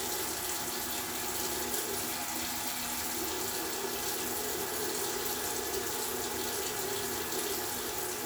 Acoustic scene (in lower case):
restroom